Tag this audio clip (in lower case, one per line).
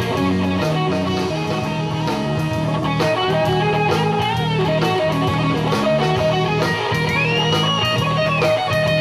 plucked string instrument
blues
musical instrument
music
acoustic guitar
guitar
strum